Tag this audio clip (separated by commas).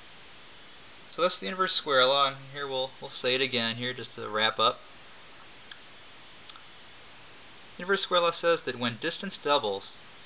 Speech